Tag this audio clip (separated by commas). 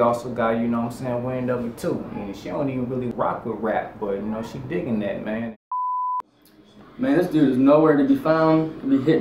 Speech